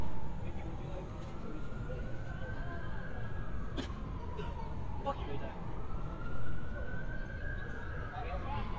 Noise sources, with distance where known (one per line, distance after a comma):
siren, far
person or small group talking, near